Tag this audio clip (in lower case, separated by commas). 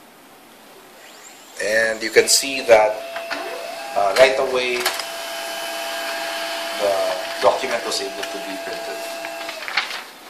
printer, speech